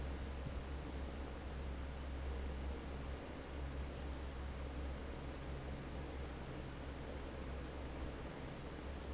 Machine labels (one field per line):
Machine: fan